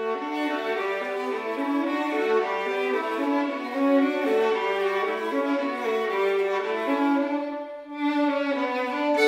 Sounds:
musical instrument, fiddle, music

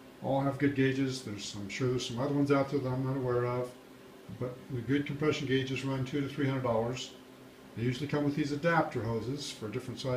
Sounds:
speech

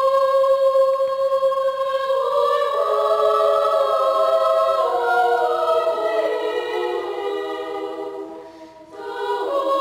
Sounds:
music, singing choir, choir

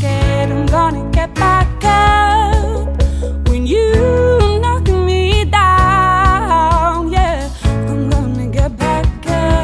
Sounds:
music, pop music

